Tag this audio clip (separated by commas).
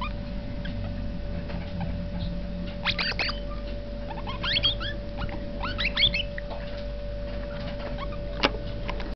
Animal, pets